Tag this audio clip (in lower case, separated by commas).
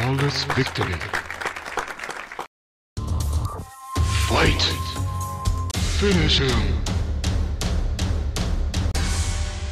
music, speech